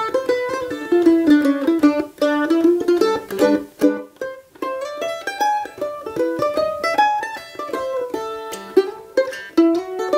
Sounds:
guitar, musical instrument, music, plucked string instrument, mandolin

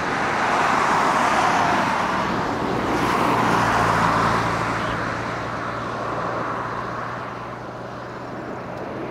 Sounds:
airplane, aircraft, vehicle

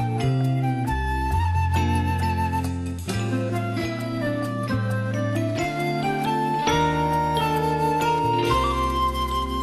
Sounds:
music

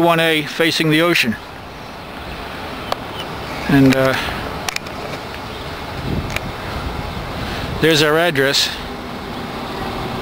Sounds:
speech

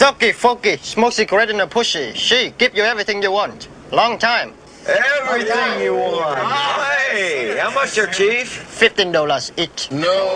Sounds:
outside, urban or man-made, speech

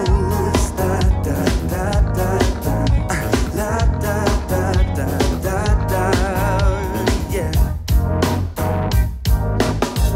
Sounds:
music, pop music

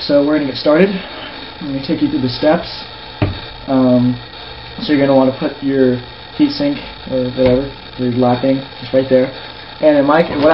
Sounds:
inside a small room, speech

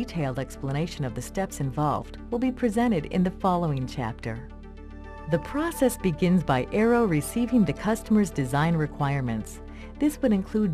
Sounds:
speech, music

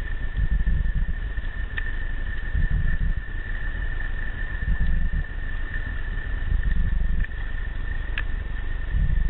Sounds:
rattle

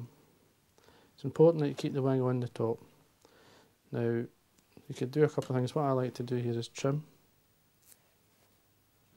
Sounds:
speech

